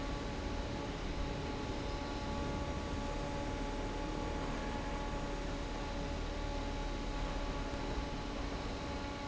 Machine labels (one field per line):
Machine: fan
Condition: normal